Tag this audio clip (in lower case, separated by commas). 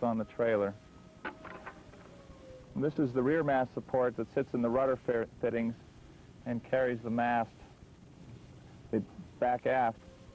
speech